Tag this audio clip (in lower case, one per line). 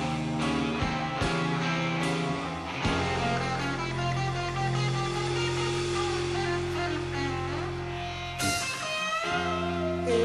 music
exciting music